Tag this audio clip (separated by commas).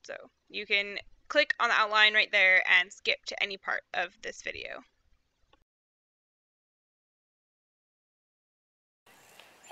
Speech